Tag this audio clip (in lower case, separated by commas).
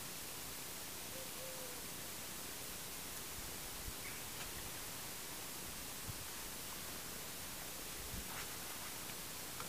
bird